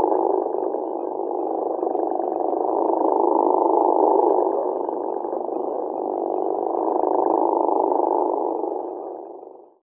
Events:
0.0s-9.7s: background noise
0.0s-9.7s: frog

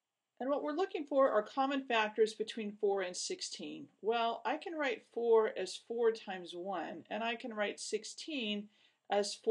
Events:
0.0s-9.5s: background noise
0.4s-3.9s: female speech
4.1s-8.7s: female speech
8.7s-9.1s: breathing

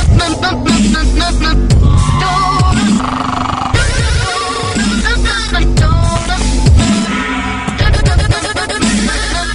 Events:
0.0s-1.6s: singing
0.0s-9.5s: music
2.2s-3.0s: singing
3.7s-6.7s: singing
7.7s-9.5s: singing

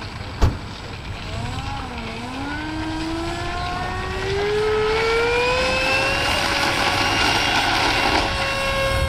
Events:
0.0s-9.0s: airplane

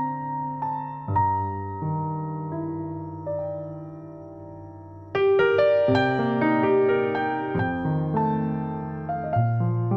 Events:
0.0s-9.9s: music

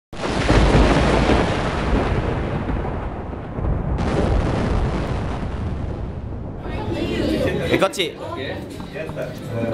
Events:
0.1s-9.7s: sound effect
6.6s-8.1s: man speaking
6.6s-9.7s: speech noise
8.2s-9.7s: man speaking

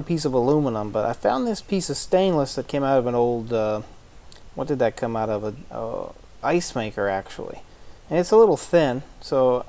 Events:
0.0s-3.7s: male speech
0.0s-9.6s: background noise
4.3s-4.4s: human sounds
4.6s-6.1s: male speech
6.4s-7.6s: male speech
7.6s-8.0s: breathing
8.1s-9.0s: male speech
9.2s-9.6s: male speech

